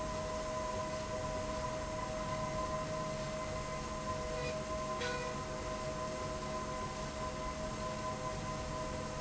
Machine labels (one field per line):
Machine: slide rail